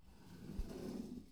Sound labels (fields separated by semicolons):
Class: furniture moving; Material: metal